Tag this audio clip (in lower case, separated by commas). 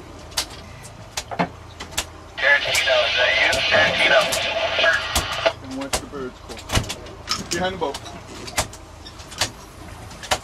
vehicle, water vehicle, speech